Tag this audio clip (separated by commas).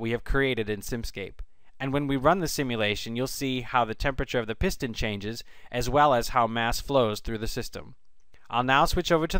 Speech